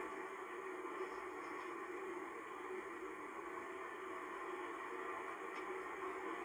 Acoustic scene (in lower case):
car